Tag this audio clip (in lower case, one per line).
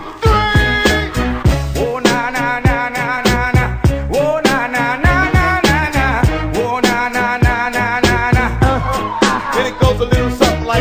music